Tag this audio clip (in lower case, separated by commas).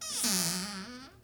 home sounds, squeak, door, cupboard open or close